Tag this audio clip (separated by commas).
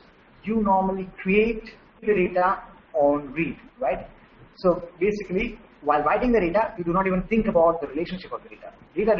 Speech